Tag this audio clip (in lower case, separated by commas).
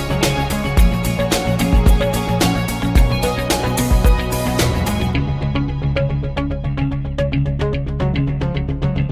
music